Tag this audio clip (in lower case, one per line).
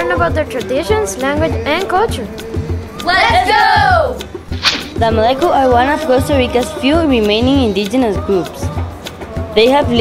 speech
music